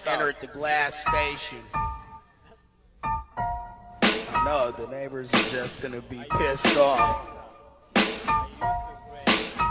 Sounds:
Speech, Music

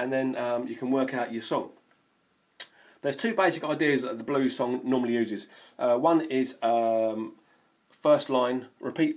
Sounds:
Speech

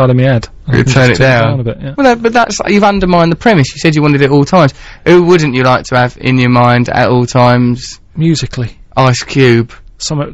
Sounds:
Speech

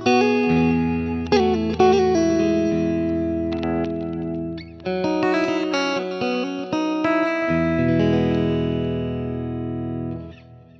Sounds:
Music

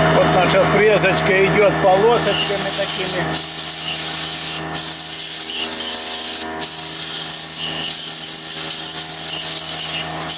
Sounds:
Tools, Drill, Speech

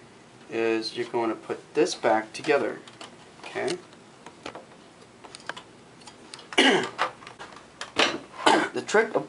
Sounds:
Speech, inside a small room

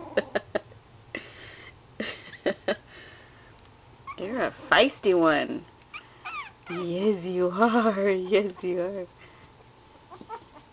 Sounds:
Animal, Domestic animals, Speech, Dog

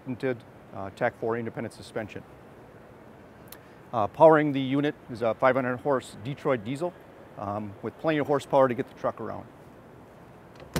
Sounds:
Speech

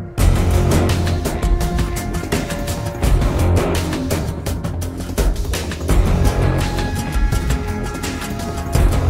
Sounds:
Music, Background music

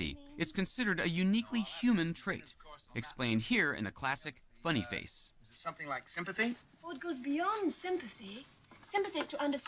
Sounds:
Narration, Speech

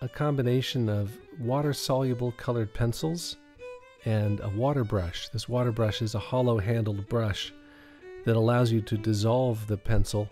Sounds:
Speech, Music

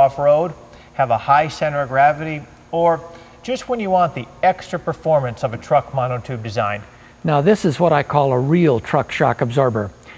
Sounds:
Speech

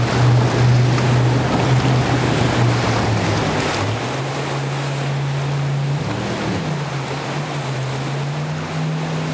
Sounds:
sailing ship

